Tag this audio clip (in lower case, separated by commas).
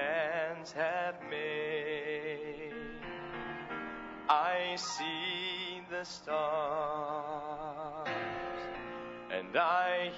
music, male singing